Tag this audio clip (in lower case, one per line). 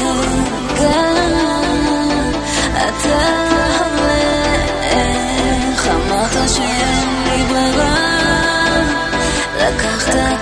electronic music
music